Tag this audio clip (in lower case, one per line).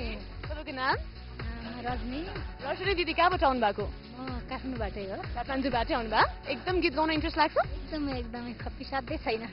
music
speech
female singing